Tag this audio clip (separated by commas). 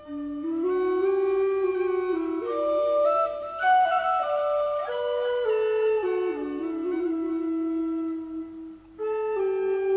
Flute, Music